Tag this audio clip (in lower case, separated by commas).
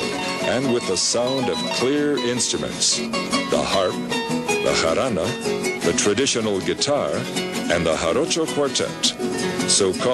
speech, music